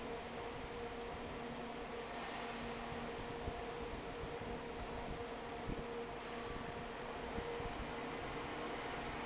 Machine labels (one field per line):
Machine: fan